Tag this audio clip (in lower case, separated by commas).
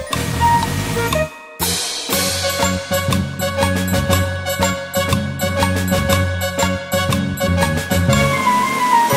theme music, music